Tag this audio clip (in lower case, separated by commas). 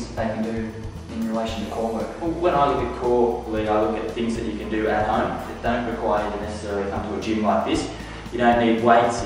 music, inside a large room or hall, speech